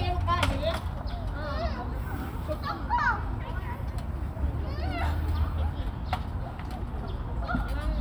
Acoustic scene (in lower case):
park